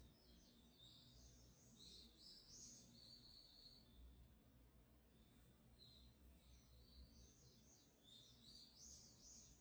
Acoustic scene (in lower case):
park